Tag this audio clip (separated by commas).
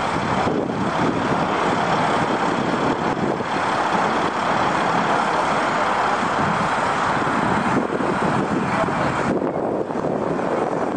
Bus, Vehicle